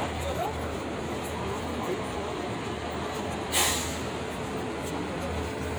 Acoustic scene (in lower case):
street